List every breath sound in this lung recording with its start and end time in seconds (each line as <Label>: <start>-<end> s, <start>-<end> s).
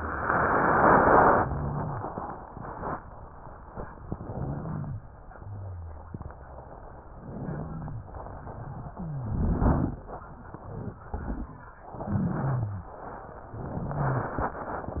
Inhalation: 4.08-5.06 s, 8.88-10.02 s, 11.96-12.98 s
Exhalation: 7.06-8.08 s, 13.48-14.50 s
Wheeze: 8.88-9.68 s, 11.96-12.98 s, 13.48-14.38 s
Rhonchi: 4.08-5.06 s, 5.28-6.26 s, 7.06-8.08 s